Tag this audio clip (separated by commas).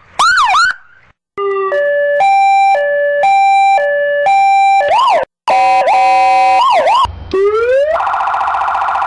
Police car (siren), Vehicle